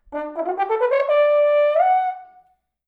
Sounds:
music, musical instrument, brass instrument

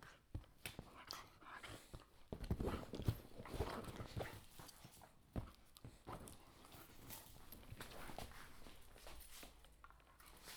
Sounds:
animal, dog, domestic animals

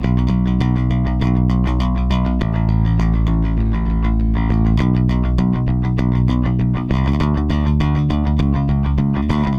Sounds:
bass guitar, musical instrument, music, plucked string instrument, guitar

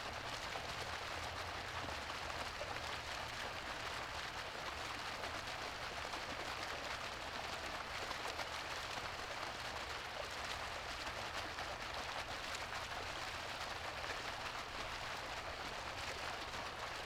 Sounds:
water, stream

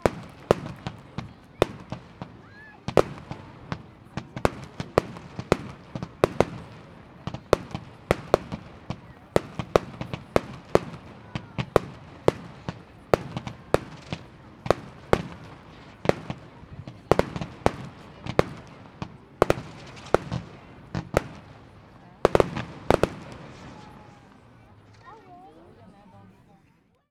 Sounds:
fireworks, explosion

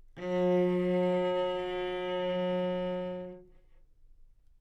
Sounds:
bowed string instrument, musical instrument, music

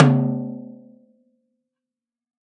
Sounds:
snare drum, drum, percussion, music, musical instrument

